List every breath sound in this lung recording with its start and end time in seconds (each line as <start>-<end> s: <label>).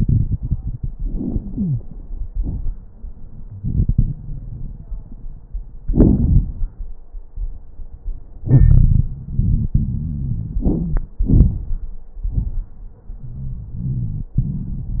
0.91-1.89 s: inhalation
1.48-1.82 s: wheeze
2.29-2.73 s: exhalation
2.29-2.73 s: crackles
8.44-9.14 s: wheeze
9.10-10.59 s: wheeze
10.62-11.14 s: inhalation
10.62-11.14 s: crackles
11.24-12.00 s: exhalation
11.24-12.00 s: crackles